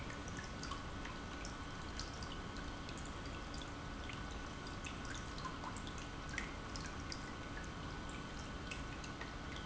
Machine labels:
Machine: pump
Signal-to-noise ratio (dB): 6 dB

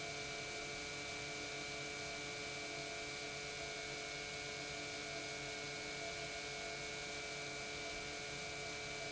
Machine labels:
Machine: pump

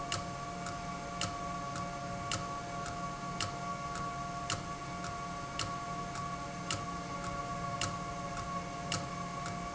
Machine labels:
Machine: valve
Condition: abnormal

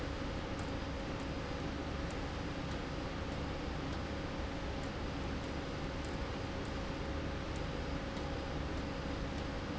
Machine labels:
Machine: slide rail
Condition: abnormal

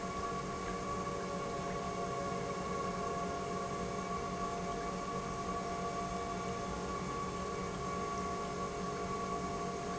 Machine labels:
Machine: pump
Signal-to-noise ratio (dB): -6 dB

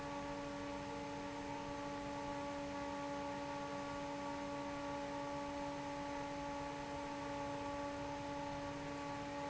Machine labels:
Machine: fan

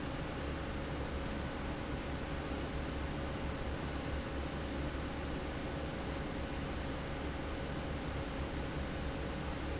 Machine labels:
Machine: fan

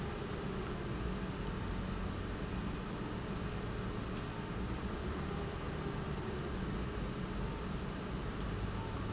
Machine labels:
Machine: pump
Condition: normal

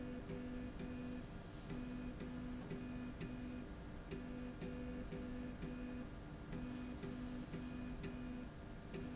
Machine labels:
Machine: slide rail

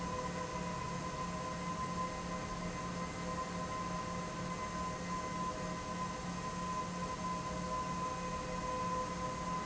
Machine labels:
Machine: fan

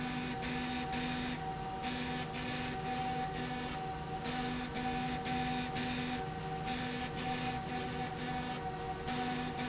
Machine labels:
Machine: slide rail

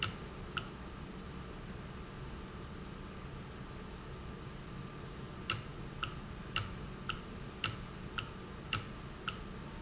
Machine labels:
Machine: valve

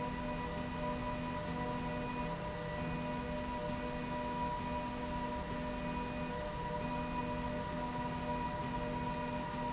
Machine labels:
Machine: slide rail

